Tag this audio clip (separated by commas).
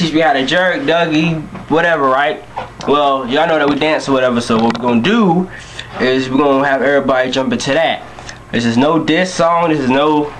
Speech